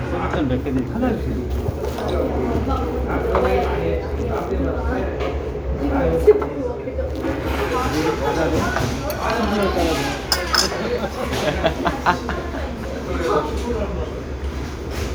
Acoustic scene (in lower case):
restaurant